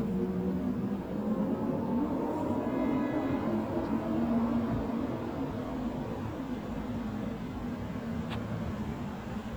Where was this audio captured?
in a residential area